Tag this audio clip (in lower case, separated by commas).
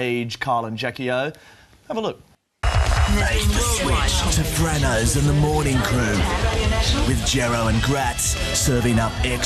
speech, music